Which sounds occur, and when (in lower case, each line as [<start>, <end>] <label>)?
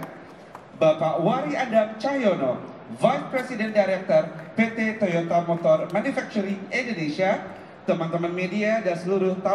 [0.00, 0.09] generic impact sounds
[0.00, 9.54] inside a large room or hall
[0.22, 0.46] surface contact
[0.48, 0.56] generic impact sounds
[0.79, 2.52] male speech
[2.62, 2.70] tick
[2.89, 4.30] male speech
[4.32, 4.51] breathing
[4.35, 4.42] generic impact sounds
[4.55, 6.55] male speech
[4.96, 5.01] generic impact sounds
[5.53, 5.65] generic impact sounds
[5.86, 5.94] tick
[6.67, 7.38] male speech
[7.48, 7.77] breathing
[7.87, 9.54] male speech